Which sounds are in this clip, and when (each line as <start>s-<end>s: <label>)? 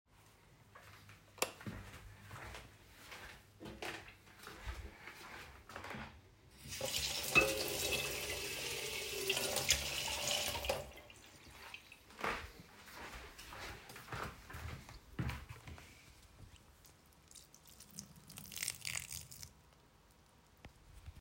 0.1s-6.2s: footsteps
1.3s-1.6s: light switch
6.5s-11.0s: running water
11.9s-16.2s: footsteps
17.2s-19.6s: running water